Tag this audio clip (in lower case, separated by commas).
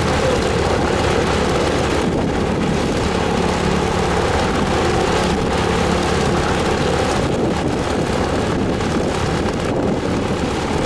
heavy engine (low frequency), vehicle, engine